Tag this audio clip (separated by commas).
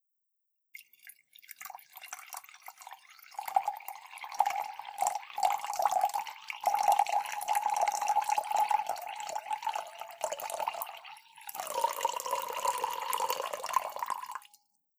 Pour, Liquid, Fill (with liquid), dribble